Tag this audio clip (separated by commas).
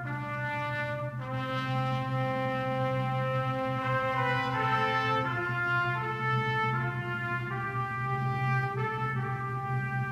Trombone, Brass instrument, Music